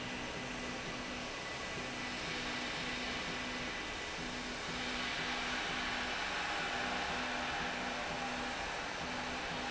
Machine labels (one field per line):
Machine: slide rail